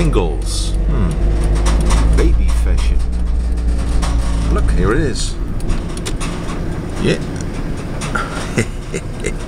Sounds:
Speech

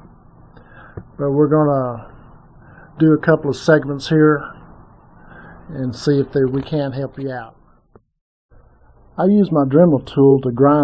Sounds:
Speech

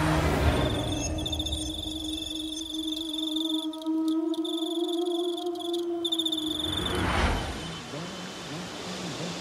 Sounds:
cricket chirping

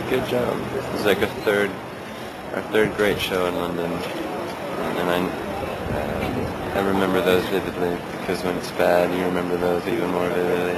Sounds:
Speech

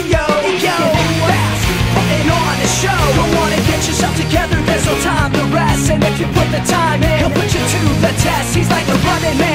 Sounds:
Music, Ska

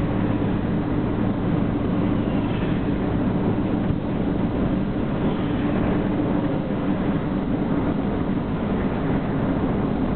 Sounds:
Vehicle, Truck

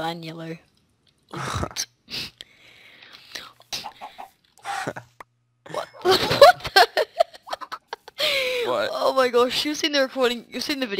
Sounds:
Speech, Cluck

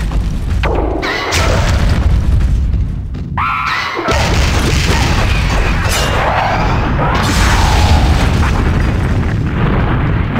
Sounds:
Boom

